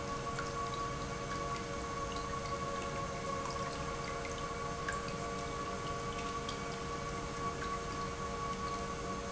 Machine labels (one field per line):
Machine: pump